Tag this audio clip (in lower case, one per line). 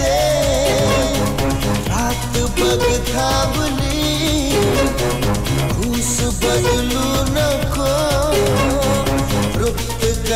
music
music of bollywood